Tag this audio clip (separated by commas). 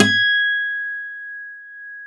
Plucked string instrument, Guitar, Musical instrument, Music, Acoustic guitar